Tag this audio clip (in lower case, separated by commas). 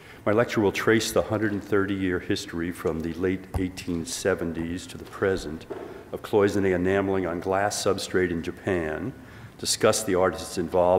speech